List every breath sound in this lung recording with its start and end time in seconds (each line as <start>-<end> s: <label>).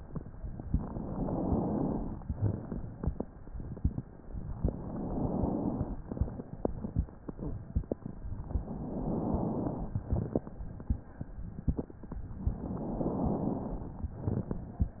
0.45-2.27 s: inhalation
2.26-4.03 s: exhalation
4.58-6.04 s: inhalation
6.05-7.97 s: exhalation
8.46-9.92 s: inhalation
10.01-11.93 s: exhalation
12.44-14.03 s: inhalation
14.14-15.00 s: exhalation